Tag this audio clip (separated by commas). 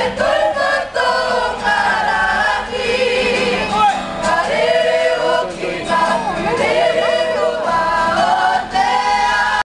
Music, Choir, Female singing